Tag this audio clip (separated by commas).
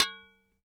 Glass, Tap, dishes, pots and pans, home sounds